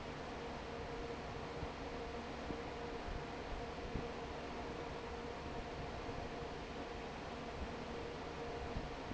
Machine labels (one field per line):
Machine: fan